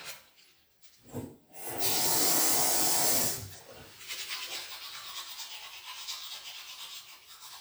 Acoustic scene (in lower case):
restroom